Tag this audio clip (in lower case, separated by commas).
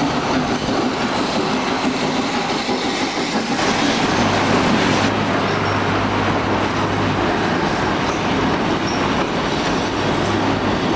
train, rail transport, railroad car, clickety-clack